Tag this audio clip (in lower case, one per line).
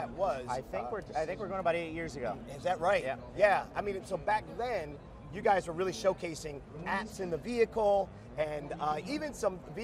speech